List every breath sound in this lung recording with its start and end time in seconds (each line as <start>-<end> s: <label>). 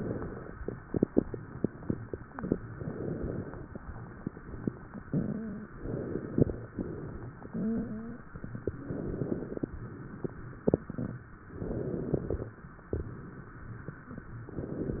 0.00-0.61 s: inhalation
2.77-3.68 s: inhalation
5.08-5.69 s: rhonchi
5.83-6.74 s: inhalation
6.74-7.46 s: exhalation
7.51-8.31 s: rhonchi
8.86-9.75 s: inhalation
9.79-10.72 s: exhalation
11.56-12.45 s: inhalation
12.90-13.83 s: exhalation